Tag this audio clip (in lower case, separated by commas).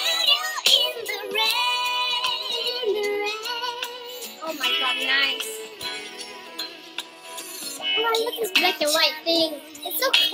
speech, music, inside a small room